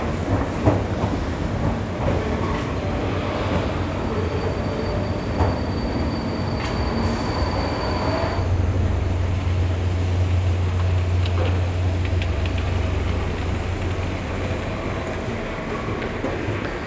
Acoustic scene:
subway station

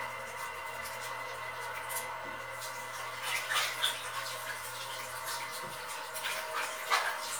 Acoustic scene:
restroom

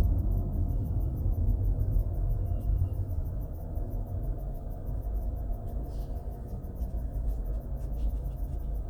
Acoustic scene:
car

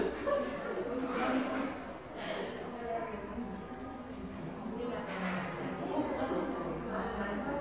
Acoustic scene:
cafe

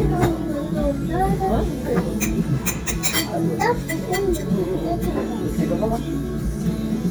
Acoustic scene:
restaurant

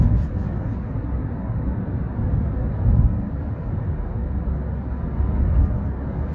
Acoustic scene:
car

